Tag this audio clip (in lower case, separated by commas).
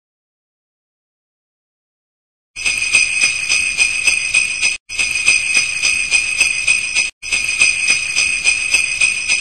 music